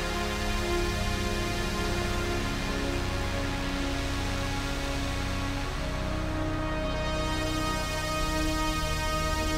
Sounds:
Music

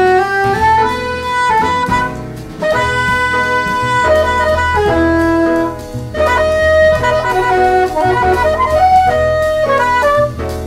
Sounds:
Wind instrument

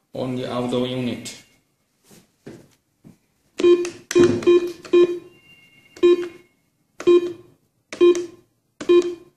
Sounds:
Telephone, Telephone bell ringing, Speech, inside a small room

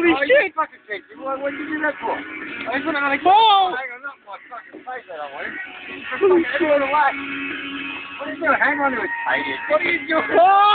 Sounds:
Speech

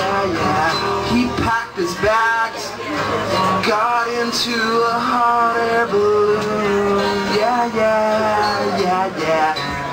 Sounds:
Music

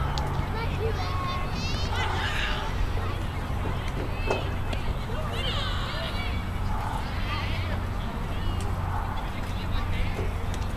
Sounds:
Speech

